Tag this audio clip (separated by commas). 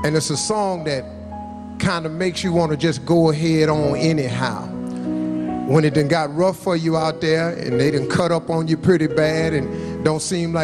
Speech, Music